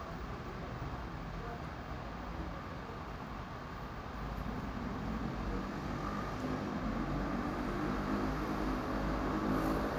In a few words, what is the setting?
residential area